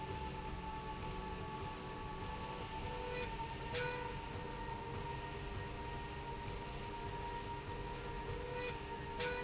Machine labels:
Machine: slide rail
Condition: normal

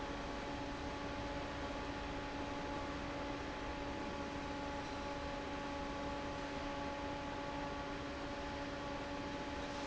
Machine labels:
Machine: fan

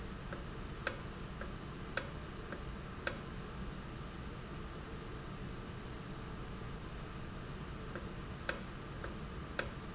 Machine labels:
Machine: valve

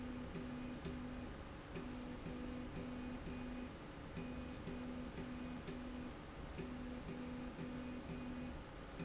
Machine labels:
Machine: slide rail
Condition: normal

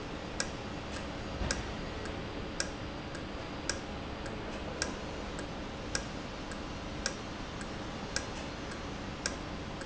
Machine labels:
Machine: valve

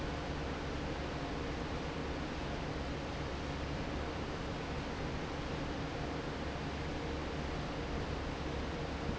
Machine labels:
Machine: fan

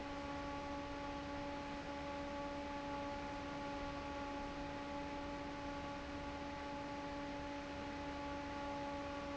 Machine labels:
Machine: fan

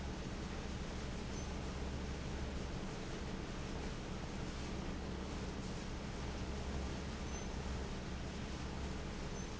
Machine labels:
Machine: fan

